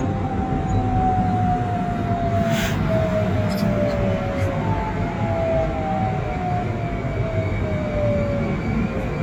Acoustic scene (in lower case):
subway train